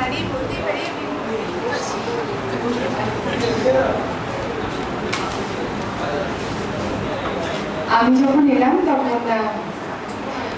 Muffled murmuring